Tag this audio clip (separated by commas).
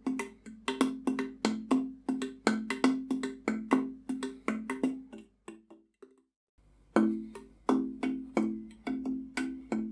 Music